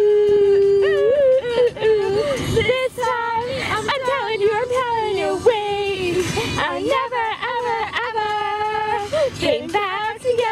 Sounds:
Music, Female singing

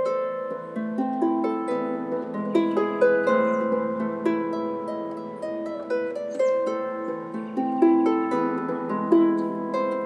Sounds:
playing harp

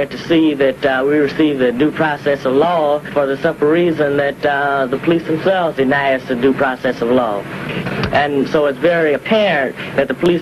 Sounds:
Speech

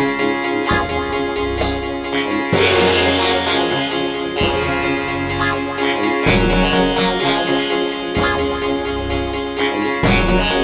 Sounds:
Music

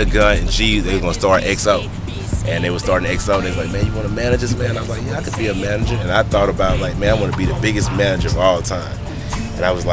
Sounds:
Music, Speech

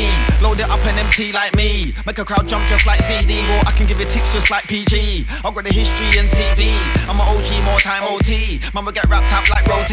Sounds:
Rapping, Television, Music, Singing

